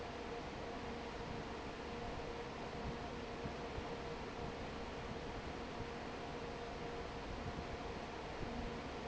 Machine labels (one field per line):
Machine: fan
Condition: normal